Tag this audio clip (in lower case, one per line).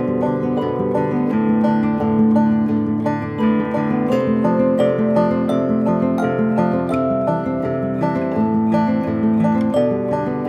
zither
pizzicato